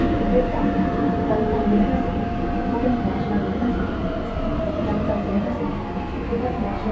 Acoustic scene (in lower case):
subway train